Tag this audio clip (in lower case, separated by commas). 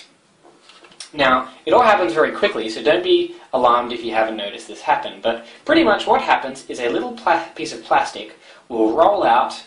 speech